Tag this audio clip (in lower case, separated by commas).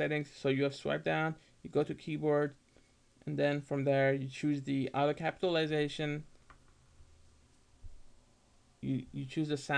speech